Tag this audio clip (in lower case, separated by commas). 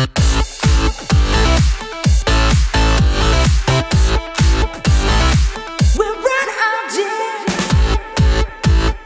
music